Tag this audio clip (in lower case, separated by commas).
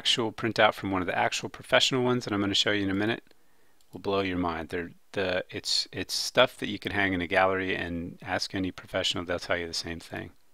speech